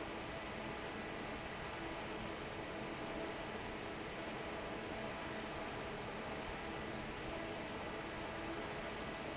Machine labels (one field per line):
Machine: fan